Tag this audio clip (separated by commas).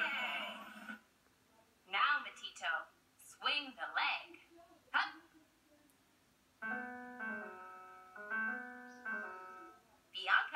Speech, Music